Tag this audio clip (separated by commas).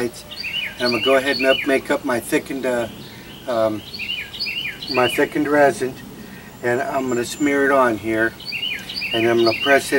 Speech